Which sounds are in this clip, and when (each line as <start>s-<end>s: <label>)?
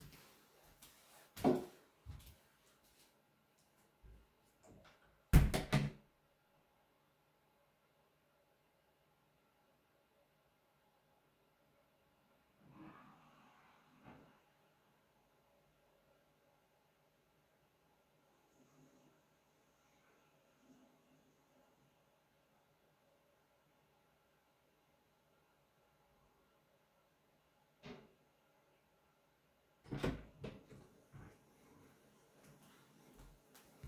0.0s-3.8s: footsteps
4.9s-6.2s: door
12.5s-14.4s: toilet flushing
29.6s-30.8s: door
33.5s-33.9s: footsteps